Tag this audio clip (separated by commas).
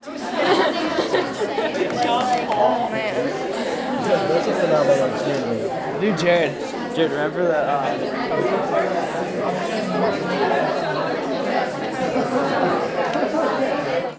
Chatter, Human group actions